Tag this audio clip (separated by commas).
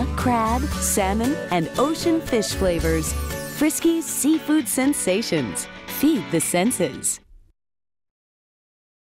Speech, Music